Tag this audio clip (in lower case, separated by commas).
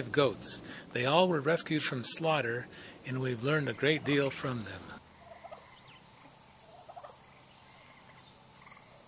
animal, speech